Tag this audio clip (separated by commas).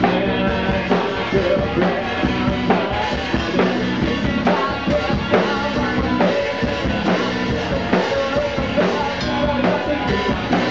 Music, Musical instrument, Drum, Drum kit